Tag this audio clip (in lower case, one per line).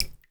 liquid
drip